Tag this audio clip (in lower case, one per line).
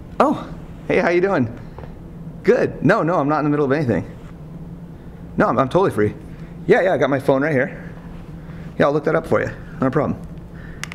speech
music